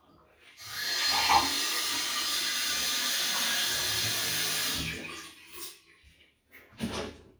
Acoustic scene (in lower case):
restroom